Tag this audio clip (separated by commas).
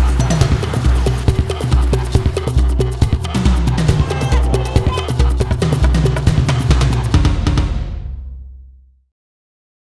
Speech, Music